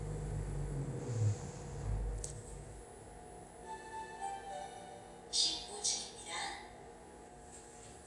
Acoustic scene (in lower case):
elevator